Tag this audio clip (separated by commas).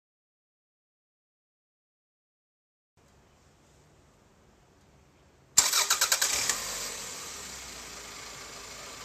Car, Silence, Vehicle